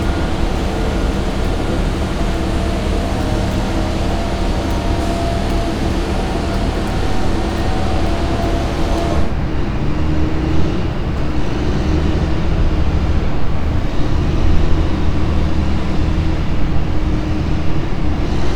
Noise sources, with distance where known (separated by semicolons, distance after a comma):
engine of unclear size